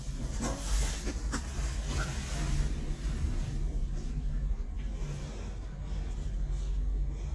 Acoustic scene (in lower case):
elevator